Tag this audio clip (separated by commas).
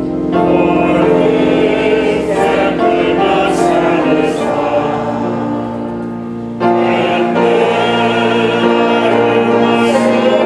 Music